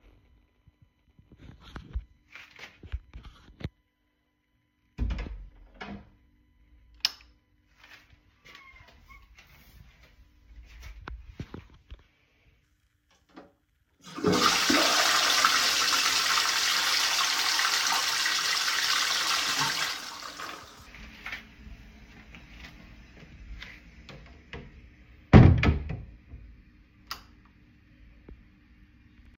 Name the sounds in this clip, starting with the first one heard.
door, light switch, toilet flushing